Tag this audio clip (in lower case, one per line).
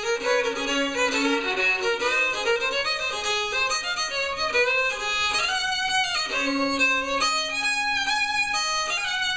violin
musical instrument
music